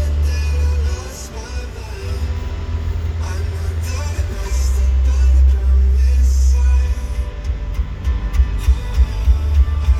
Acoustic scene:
car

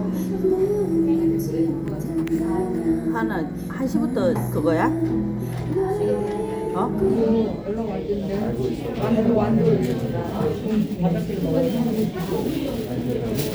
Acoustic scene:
crowded indoor space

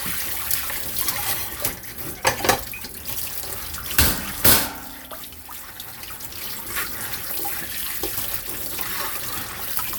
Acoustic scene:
kitchen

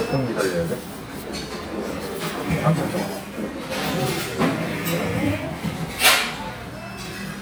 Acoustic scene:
crowded indoor space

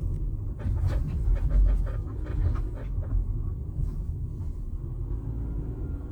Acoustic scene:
car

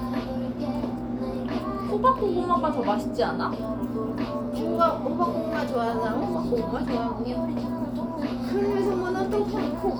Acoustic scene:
cafe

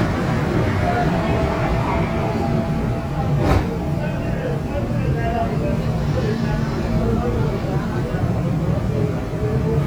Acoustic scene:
subway train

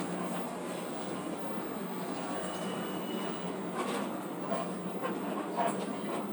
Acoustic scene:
bus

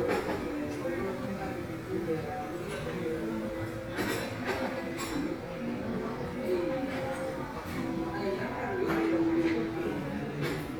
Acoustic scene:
crowded indoor space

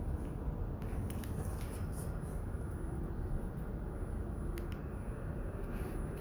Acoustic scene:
elevator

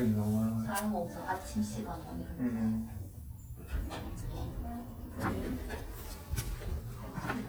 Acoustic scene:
elevator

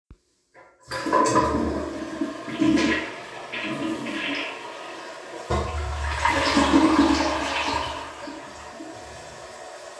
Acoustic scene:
restroom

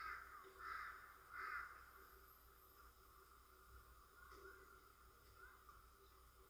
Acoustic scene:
residential area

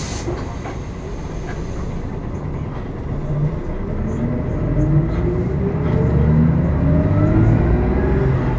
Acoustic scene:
bus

